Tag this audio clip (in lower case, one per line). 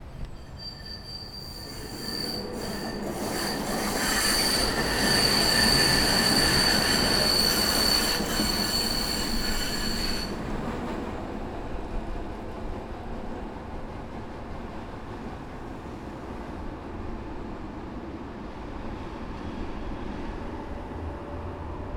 vehicle